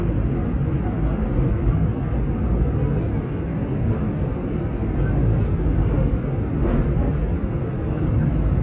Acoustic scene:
subway train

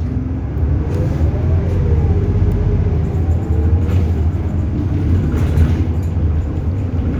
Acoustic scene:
bus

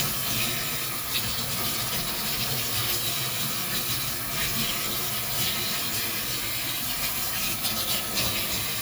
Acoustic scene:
kitchen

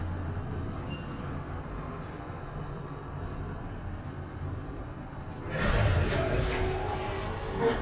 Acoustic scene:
elevator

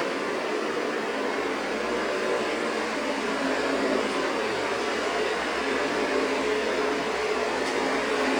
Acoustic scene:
street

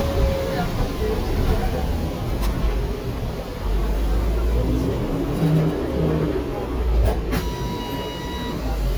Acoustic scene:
bus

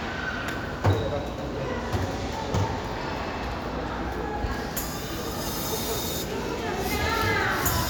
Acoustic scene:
crowded indoor space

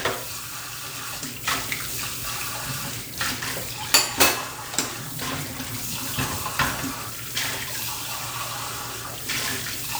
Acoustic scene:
kitchen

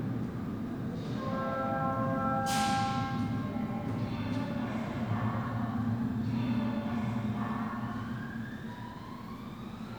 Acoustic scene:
subway station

